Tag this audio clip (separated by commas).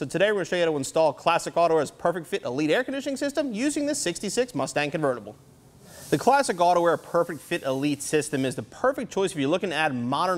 Speech